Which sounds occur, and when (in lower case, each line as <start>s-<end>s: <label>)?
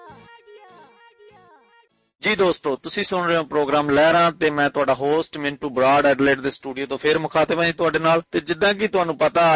0.0s-1.9s: kid speaking
0.0s-2.2s: music
2.2s-8.3s: male speech
2.2s-9.5s: background noise
8.4s-9.5s: male speech